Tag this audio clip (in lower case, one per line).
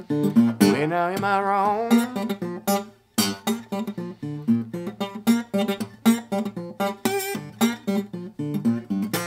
guitar
musical instrument
song
singing
music
slide guitar
acoustic guitar
strum